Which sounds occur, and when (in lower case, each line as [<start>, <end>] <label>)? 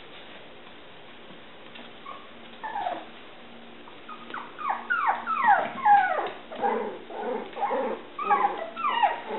[0.00, 9.35] mechanisms
[1.72, 1.88] walk
[2.05, 2.30] whimper (dog)
[2.46, 2.59] walk
[2.61, 3.16] whimper (dog)
[2.79, 3.24] walk
[4.08, 4.49] whimper (dog)
[4.24, 4.39] walk
[4.60, 6.36] whimper (dog)
[5.39, 5.98] walk
[6.23, 6.36] walk
[6.52, 6.81] whimper (dog)
[6.54, 6.98] growling
[6.55, 6.67] walk
[7.10, 7.49] growling
[7.53, 7.61] walk
[7.56, 7.74] whimper (dog)
[7.58, 8.02] growling
[8.20, 9.27] whimper (dog)
[8.24, 8.65] growling
[8.55, 8.65] walk
[8.77, 8.87] walk